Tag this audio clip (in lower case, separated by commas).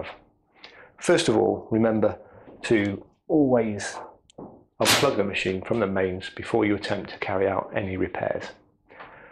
speech